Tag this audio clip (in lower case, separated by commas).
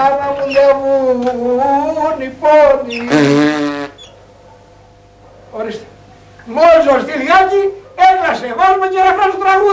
inside a small room, speech